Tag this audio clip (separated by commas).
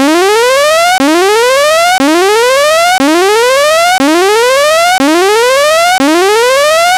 Alarm